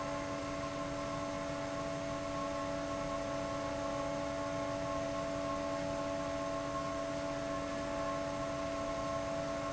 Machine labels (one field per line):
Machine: fan